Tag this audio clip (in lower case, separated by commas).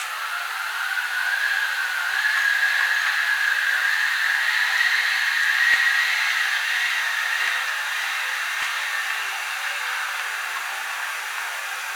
wind